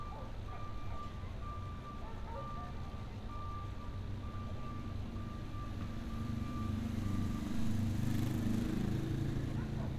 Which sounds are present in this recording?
small-sounding engine, reverse beeper, dog barking or whining